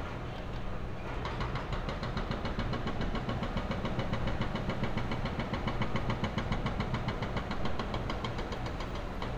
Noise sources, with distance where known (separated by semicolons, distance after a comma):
jackhammer, near